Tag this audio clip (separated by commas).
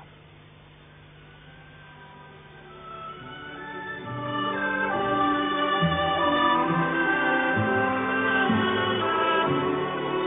Organ, Hammond organ